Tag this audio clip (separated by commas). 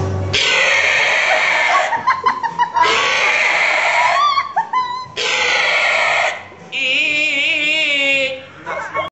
Cacophony